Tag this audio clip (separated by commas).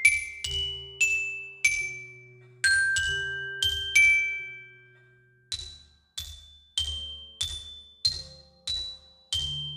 playing glockenspiel